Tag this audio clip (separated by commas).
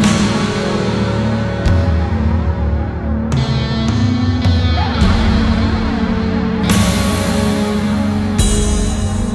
Music